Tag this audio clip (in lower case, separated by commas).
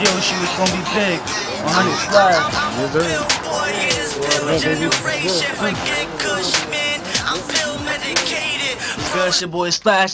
music, speech